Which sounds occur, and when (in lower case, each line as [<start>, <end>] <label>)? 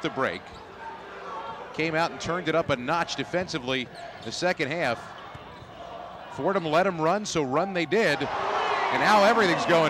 [0.00, 0.53] male speech
[0.00, 9.85] speech babble
[0.43, 0.71] squeal
[1.71, 3.83] male speech
[1.73, 1.99] basketball bounce
[2.23, 2.43] basketball bounce
[2.62, 2.85] basketball bounce
[3.31, 3.52] basketball bounce
[3.83, 4.12] squeal
[4.20, 4.97] male speech
[4.22, 4.48] basketball bounce
[4.25, 4.42] squeal
[5.00, 5.43] squeal
[5.26, 5.72] basketball bounce
[6.33, 8.29] male speech
[8.16, 9.85] shout
[9.01, 9.85] male speech